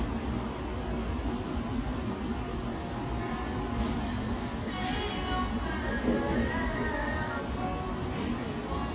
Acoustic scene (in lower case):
cafe